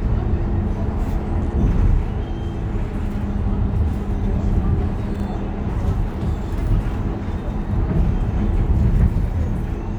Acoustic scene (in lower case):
bus